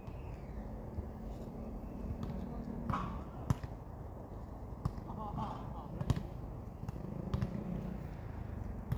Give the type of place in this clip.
park